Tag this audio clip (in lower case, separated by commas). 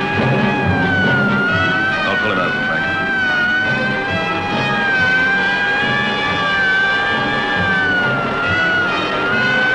vehicle, speech